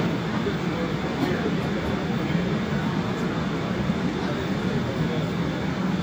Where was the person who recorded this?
in a subway station